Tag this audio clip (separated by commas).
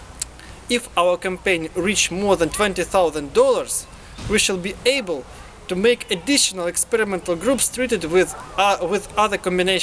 Speech